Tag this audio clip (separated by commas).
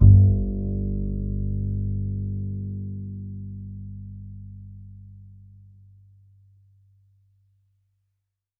Musical instrument, Bowed string instrument, Music